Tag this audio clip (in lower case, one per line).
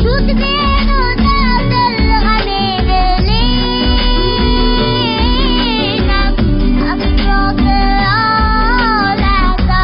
child singing